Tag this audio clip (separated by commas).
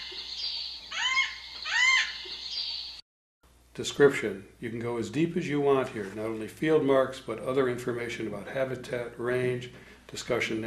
Speech, Chirp